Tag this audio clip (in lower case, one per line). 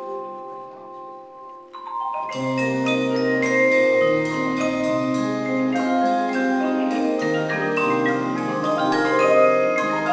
music
percussion